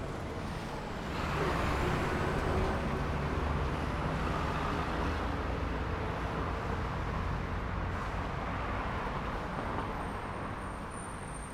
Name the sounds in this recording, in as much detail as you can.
motorcycle, bus, car, motorcycle engine accelerating, bus engine accelerating, bus compressor, bus brakes, car wheels rolling